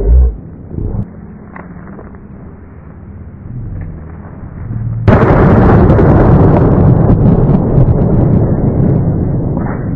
Explosion and the wind blowing into the microphone